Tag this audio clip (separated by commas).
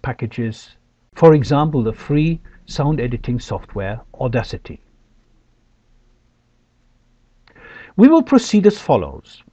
Speech